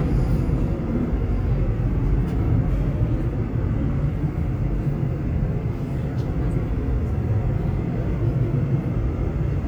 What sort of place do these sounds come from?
subway train